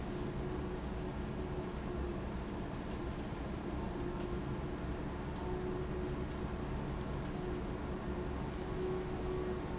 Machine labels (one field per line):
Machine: fan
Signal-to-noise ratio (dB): -6 dB